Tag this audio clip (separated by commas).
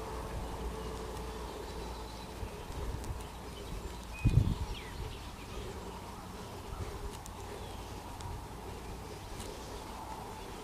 Bird